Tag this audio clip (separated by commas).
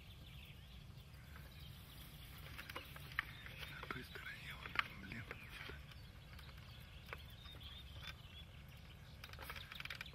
Speech, Bird